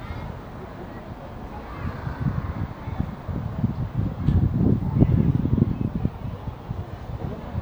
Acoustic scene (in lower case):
residential area